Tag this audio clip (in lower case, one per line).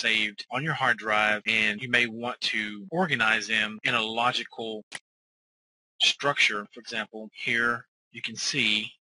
speech